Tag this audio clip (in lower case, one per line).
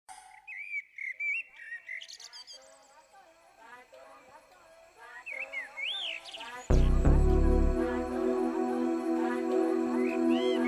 bird
bird song
tweet